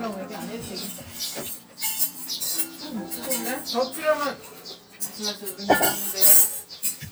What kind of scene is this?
restaurant